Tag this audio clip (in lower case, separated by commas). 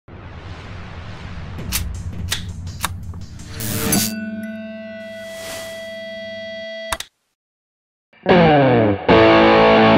musical instrument, guitar, plucked string instrument, music